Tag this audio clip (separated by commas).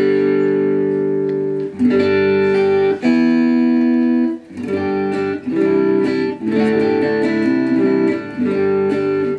Music, Guitar, Plucked string instrument, Musical instrument, inside a small room